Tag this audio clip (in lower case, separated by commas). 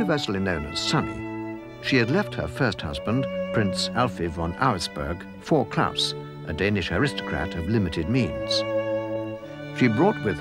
cello, speech, music